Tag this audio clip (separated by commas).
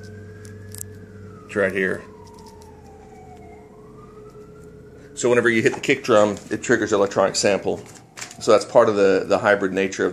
Speech